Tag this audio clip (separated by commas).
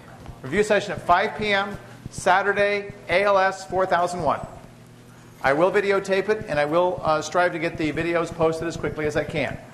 Speech